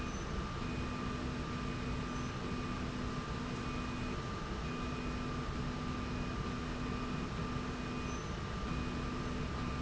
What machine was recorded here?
slide rail